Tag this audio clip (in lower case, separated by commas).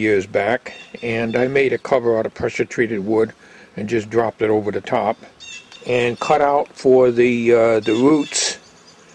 speech